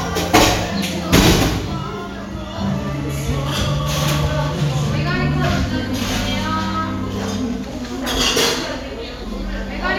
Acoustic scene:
cafe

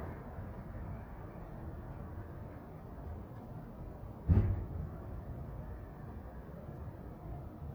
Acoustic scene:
residential area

